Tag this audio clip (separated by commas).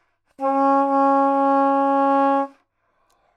Musical instrument, woodwind instrument, Music